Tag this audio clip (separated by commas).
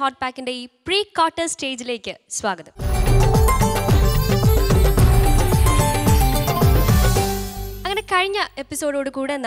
Music, Speech